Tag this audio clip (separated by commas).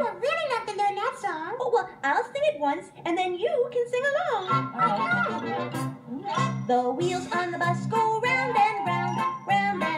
Speech, Music